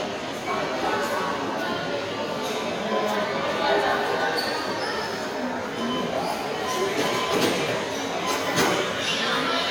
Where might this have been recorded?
in a subway station